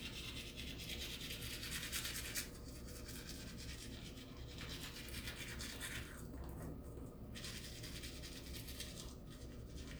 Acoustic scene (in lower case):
restroom